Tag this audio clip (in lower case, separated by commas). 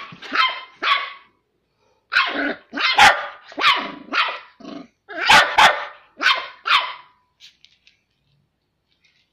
fox barking